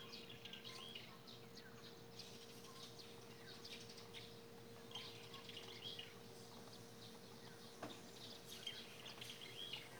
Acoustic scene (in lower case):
park